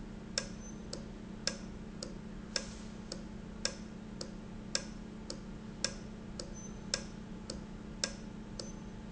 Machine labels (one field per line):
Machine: valve